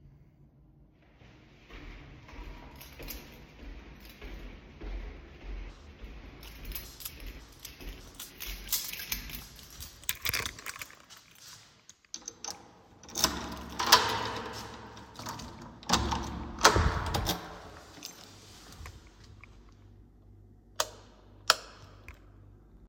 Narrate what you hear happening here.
I walked through the hall to my apartment, while taking out the keys from my pocket. Then opened the door, then closed it and turned the lights on